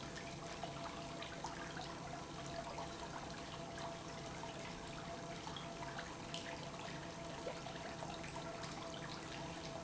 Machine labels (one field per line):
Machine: pump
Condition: normal